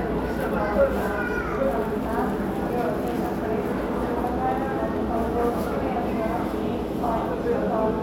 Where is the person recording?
in a crowded indoor space